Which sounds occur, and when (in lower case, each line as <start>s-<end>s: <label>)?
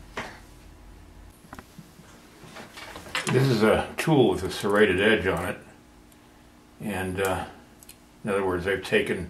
0.0s-9.2s: mechanisms
0.1s-0.3s: generic impact sounds
1.4s-1.6s: generic impact sounds
2.5s-3.2s: generic impact sounds
3.2s-5.5s: male speech
6.0s-6.2s: generic impact sounds
6.8s-7.5s: male speech
7.7s-7.9s: generic impact sounds
8.2s-9.2s: male speech